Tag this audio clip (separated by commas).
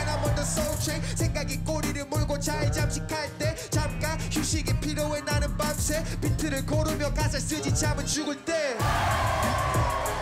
rapping